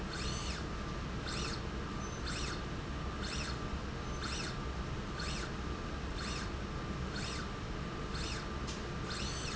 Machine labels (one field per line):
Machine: slide rail